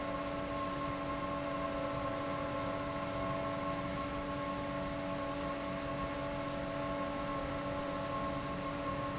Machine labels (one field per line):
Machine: fan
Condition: abnormal